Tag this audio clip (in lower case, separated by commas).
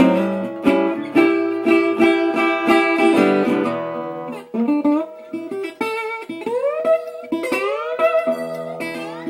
acoustic guitar, plucked string instrument, music, musical instrument, guitar